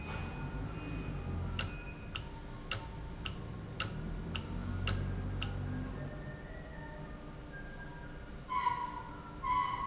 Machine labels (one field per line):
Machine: valve